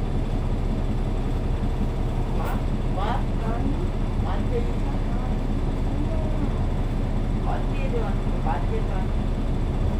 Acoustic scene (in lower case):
bus